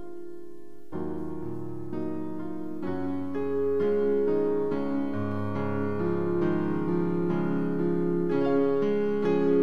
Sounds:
Tender music, Music

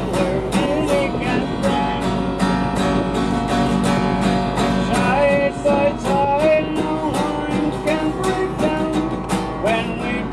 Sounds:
Independent music, Jazz, Music

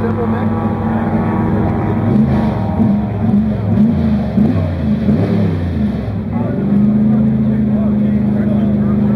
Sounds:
Vehicle, Car, Speech

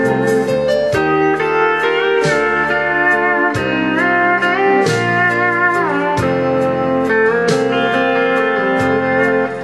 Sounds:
Guitar, Musical instrument, slide guitar, Country, Music

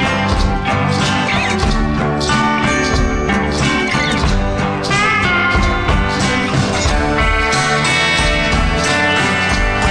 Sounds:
Music

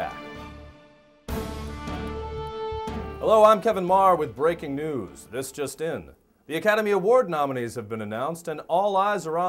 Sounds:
Speech, Music

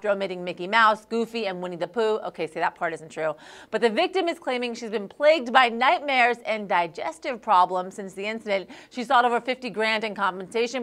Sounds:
Speech

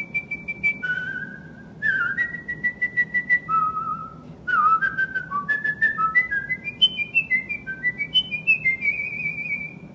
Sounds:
Whistling, people whistling

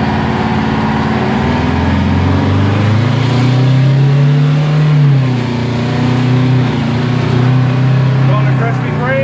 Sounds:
Speech, Vehicle, Truck

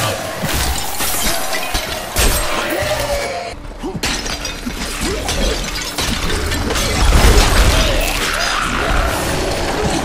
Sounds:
Music

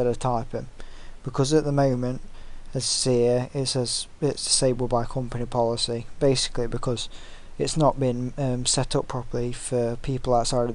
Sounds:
Speech

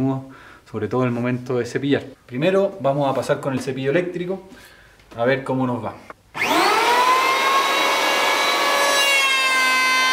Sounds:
planing timber

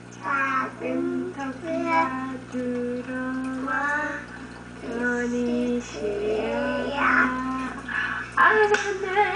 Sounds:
Lullaby

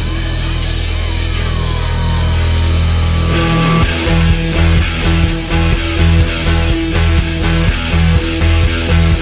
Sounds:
Music

